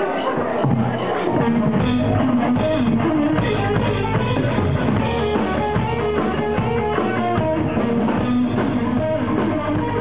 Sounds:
musical instrument
music
guitar
acoustic guitar

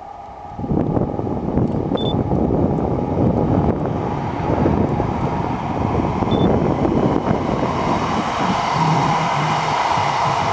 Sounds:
wind
wind noise (microphone)

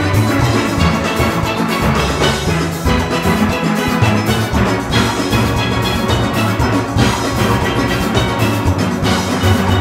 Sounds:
music
steelpan

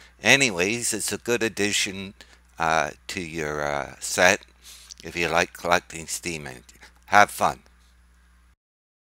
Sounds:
speech

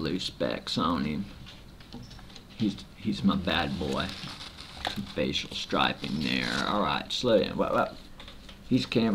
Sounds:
speech

